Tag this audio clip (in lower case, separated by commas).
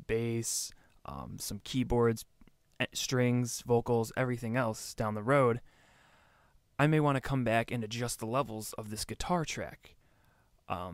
speech